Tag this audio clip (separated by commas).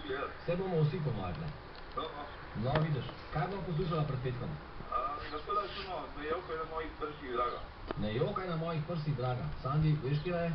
Speech